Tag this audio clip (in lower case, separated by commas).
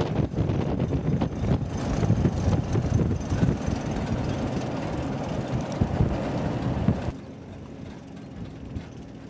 wind, wind noise (microphone), wind noise